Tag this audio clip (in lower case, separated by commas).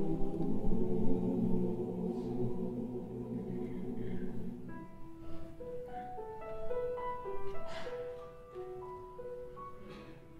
choir, music